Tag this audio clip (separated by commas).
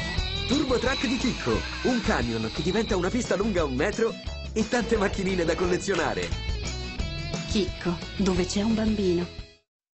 Speech, Music